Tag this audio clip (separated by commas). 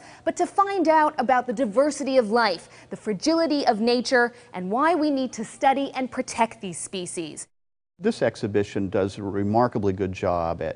Speech